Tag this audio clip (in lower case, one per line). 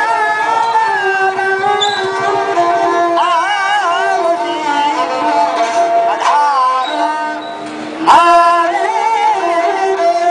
music